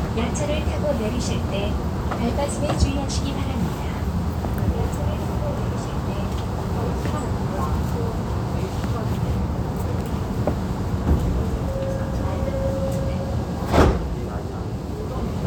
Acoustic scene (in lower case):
subway train